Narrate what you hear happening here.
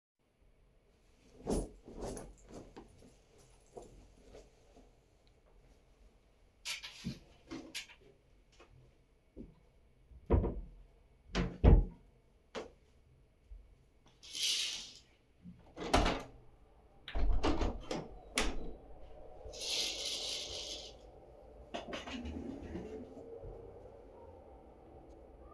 I took the jacket, hung it up, closed the closet, opened the curtains, opened the window, drew the curtains, sat down on a chair.